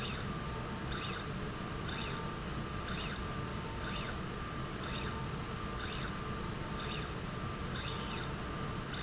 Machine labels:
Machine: slide rail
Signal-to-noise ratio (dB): -6 dB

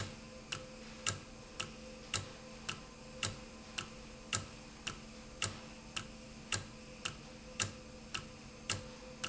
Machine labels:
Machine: valve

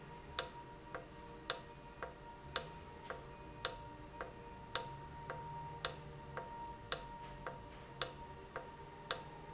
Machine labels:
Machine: valve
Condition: normal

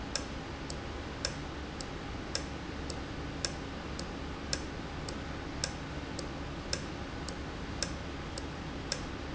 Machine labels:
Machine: valve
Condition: normal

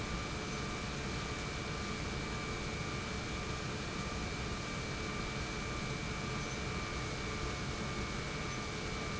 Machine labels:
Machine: pump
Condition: normal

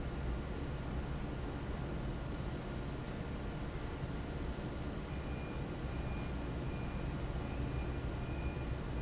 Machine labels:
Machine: fan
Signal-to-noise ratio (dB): -6 dB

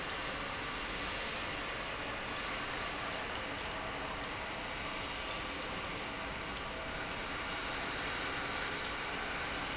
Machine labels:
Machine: pump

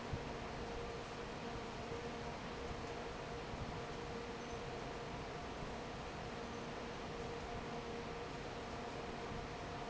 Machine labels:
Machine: fan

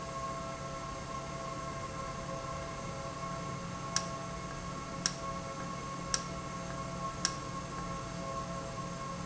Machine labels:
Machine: valve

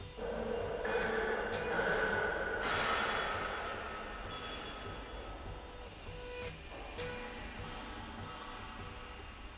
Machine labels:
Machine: slide rail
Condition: normal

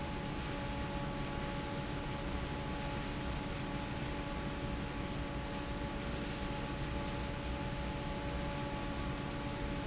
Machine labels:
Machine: fan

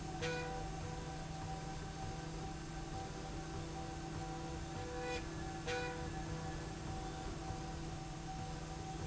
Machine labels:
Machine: slide rail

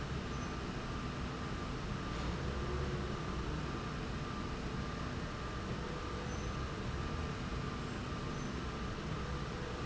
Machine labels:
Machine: slide rail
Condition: normal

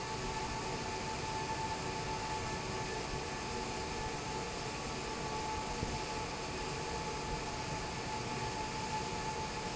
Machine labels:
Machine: fan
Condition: normal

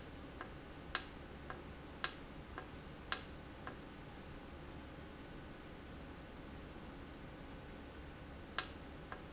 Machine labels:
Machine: valve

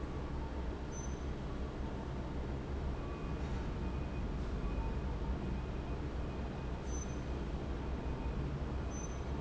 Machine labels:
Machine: fan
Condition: abnormal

